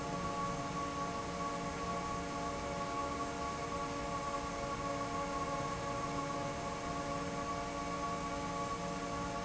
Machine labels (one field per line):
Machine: fan